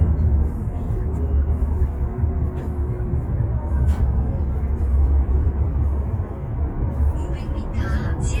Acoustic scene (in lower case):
car